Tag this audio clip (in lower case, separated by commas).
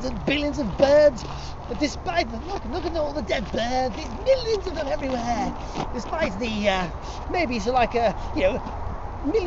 speech